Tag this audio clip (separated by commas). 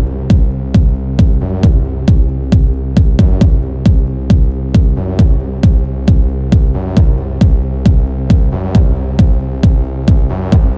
Electronic music, Music, Techno